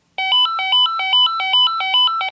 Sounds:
ringtone, telephone, alarm

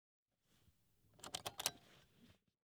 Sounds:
car, motor vehicle (road), vehicle

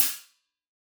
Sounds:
music, musical instrument, hi-hat, cymbal, percussion

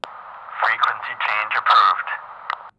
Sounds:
human voice, man speaking, speech

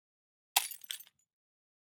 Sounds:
shatter, glass

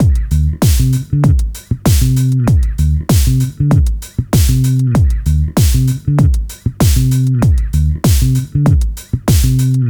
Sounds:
guitar, bass guitar, musical instrument, music, plucked string instrument

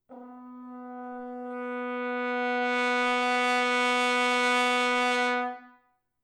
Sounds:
musical instrument, music, brass instrument

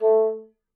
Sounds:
music, musical instrument, woodwind instrument

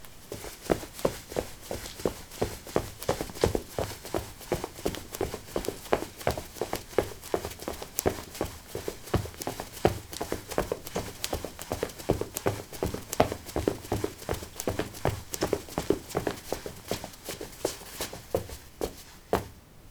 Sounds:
run

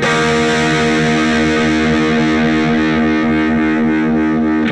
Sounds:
electric guitar, musical instrument, music, plucked string instrument, guitar

